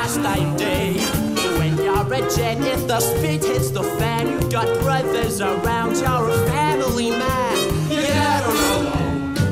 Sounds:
jazz
music

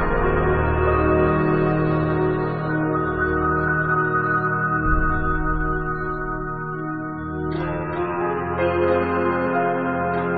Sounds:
music

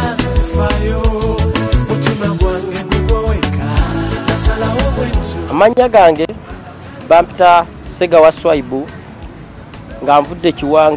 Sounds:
music of africa

